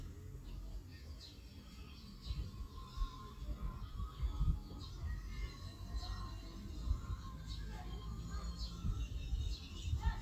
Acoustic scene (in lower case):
park